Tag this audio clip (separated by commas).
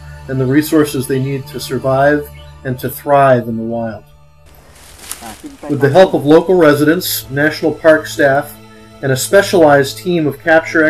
Speech, Music